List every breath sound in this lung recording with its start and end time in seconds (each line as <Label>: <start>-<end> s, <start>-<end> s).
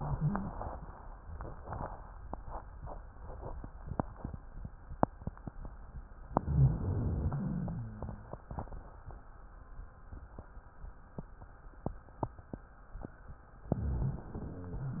Inhalation: 6.34-7.84 s, 13.74-15.00 s
Exhalation: 7.84-8.92 s
Wheeze: 6.40-7.13 s
Rhonchi: 7.84-8.43 s, 13.74-15.00 s